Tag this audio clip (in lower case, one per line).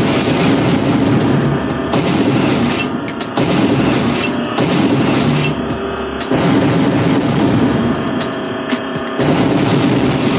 music